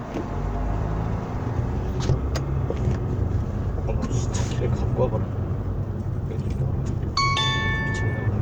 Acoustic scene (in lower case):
car